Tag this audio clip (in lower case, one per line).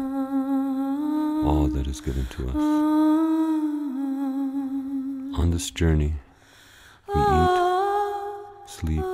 humming